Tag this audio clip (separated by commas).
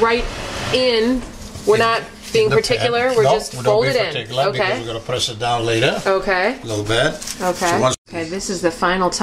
Speech